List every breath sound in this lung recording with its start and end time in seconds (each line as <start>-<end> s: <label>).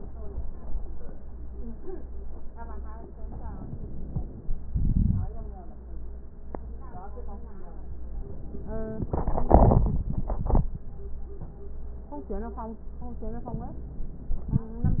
3.13-4.54 s: inhalation